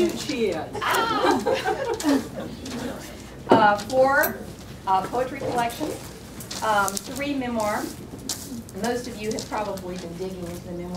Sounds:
speech

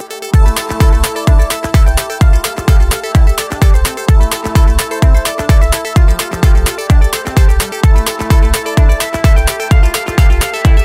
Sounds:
music

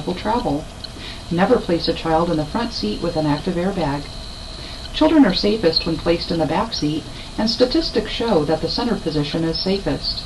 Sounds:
speech

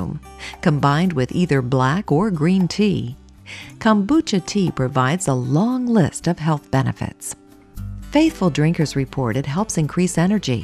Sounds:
speech
music

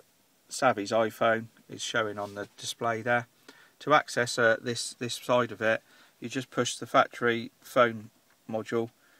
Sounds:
speech

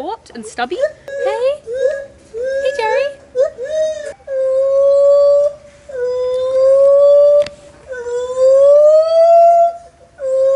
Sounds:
gibbon howling

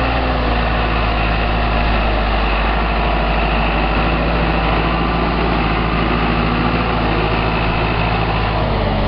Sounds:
vehicle

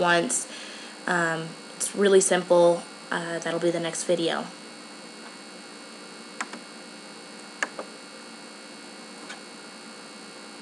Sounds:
speech

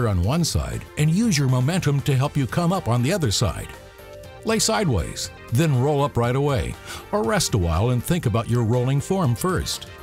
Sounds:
speech
music

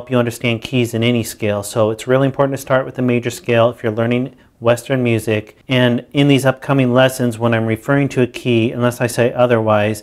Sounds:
speech

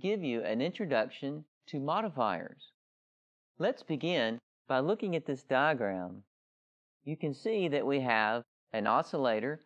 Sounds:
speech

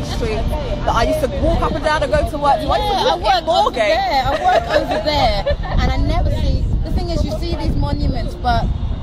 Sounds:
woman speaking
speech
music
speech noise

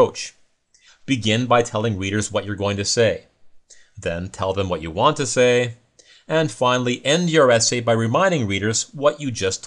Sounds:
speech

